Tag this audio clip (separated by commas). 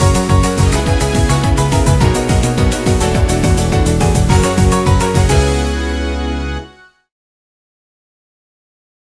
Music